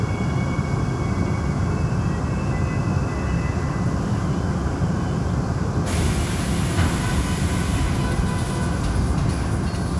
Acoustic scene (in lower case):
subway train